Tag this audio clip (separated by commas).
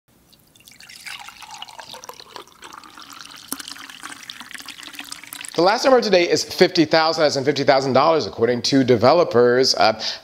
Water, Speech